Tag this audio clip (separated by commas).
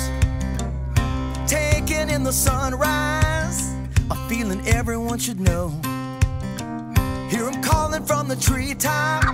Music